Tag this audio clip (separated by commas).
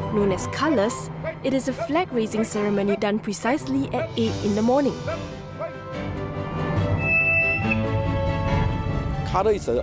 Music, Speech